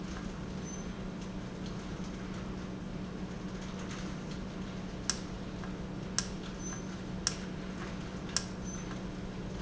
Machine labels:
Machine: valve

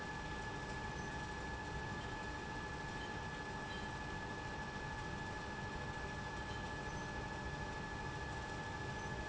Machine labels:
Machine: pump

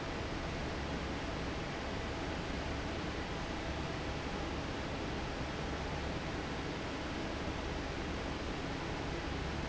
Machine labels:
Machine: fan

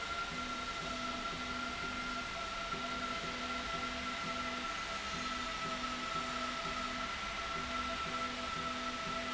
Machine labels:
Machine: slide rail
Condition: normal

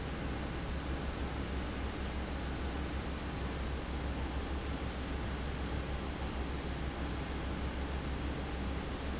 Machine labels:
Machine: fan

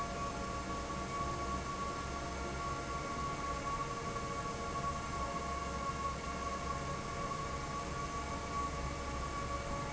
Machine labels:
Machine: fan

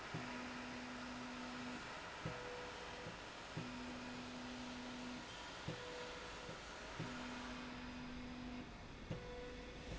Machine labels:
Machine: slide rail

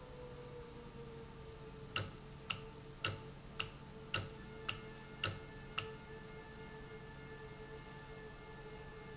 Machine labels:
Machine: valve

